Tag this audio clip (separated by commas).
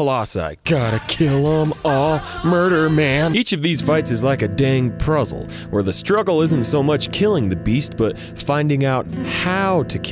Music, Speech